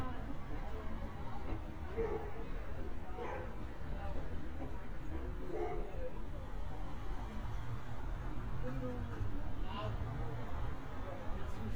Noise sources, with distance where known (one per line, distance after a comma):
person or small group talking, near
dog barking or whining, near